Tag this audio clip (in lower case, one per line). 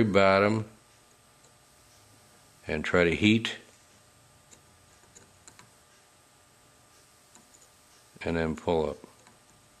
speech